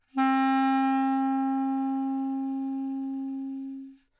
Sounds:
musical instrument, woodwind instrument, music

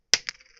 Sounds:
domestic sounds, coin (dropping)

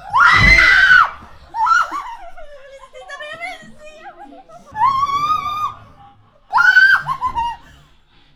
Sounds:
screaming, human voice

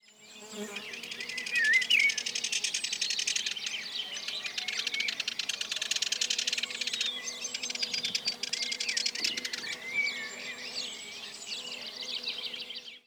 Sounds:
bird song, animal, wild animals, bird

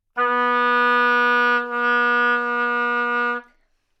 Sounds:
musical instrument, music, woodwind instrument

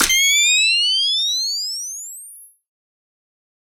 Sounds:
mechanisms, camera

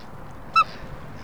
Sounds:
livestock, animal, fowl

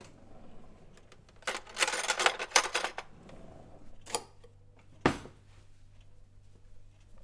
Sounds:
silverware, home sounds

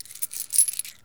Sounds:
domestic sounds, coin (dropping)

